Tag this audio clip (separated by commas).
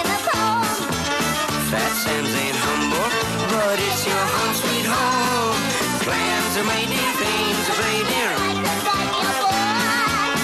Music, Swing music